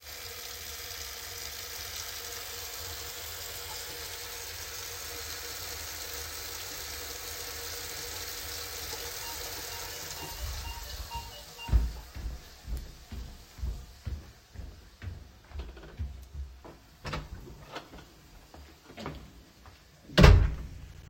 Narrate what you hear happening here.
I was doing dishes, while the door bell started ringing. I went to the front door and opened it.